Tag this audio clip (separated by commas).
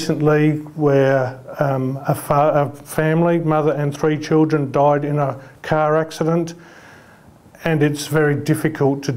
Speech